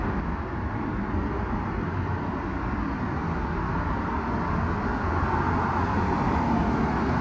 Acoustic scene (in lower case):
street